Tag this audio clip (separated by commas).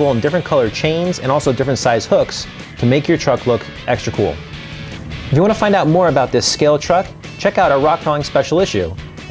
Music, Speech